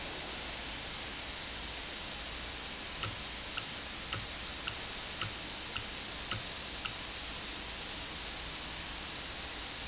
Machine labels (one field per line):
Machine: valve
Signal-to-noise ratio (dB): -6 dB